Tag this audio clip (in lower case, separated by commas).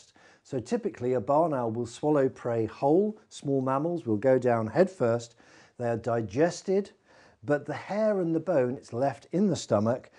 speech